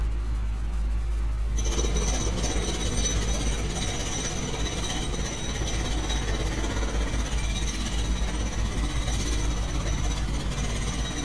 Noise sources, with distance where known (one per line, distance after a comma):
unidentified impact machinery